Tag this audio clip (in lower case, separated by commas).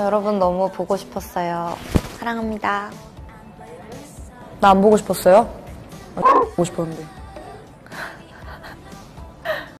music, speech